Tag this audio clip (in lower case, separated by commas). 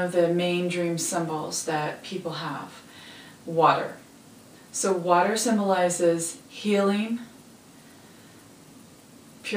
speech